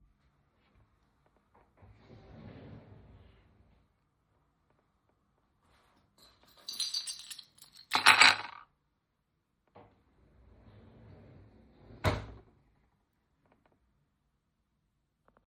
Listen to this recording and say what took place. I opened the drawer to get the keys out, then put them on the table and shut the drawer